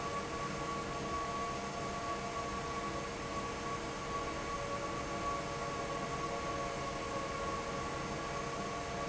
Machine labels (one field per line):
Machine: fan